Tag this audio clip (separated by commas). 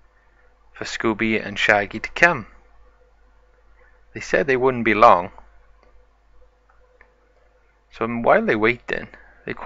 Speech